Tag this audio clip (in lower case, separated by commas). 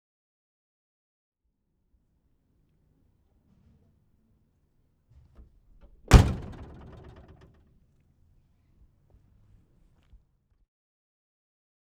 motor vehicle (road), vehicle